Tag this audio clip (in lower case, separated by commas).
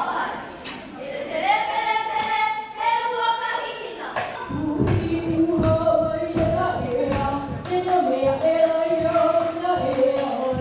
music, folk music